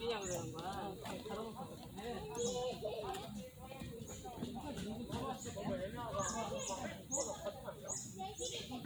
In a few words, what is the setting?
park